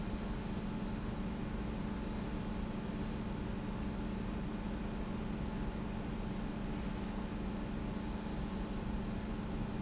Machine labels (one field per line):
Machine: pump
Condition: normal